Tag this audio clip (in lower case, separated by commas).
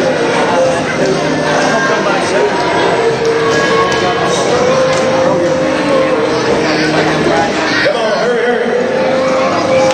inside a public space, speech, music